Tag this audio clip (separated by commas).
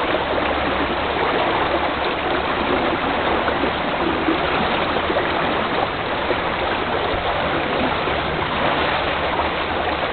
Vehicle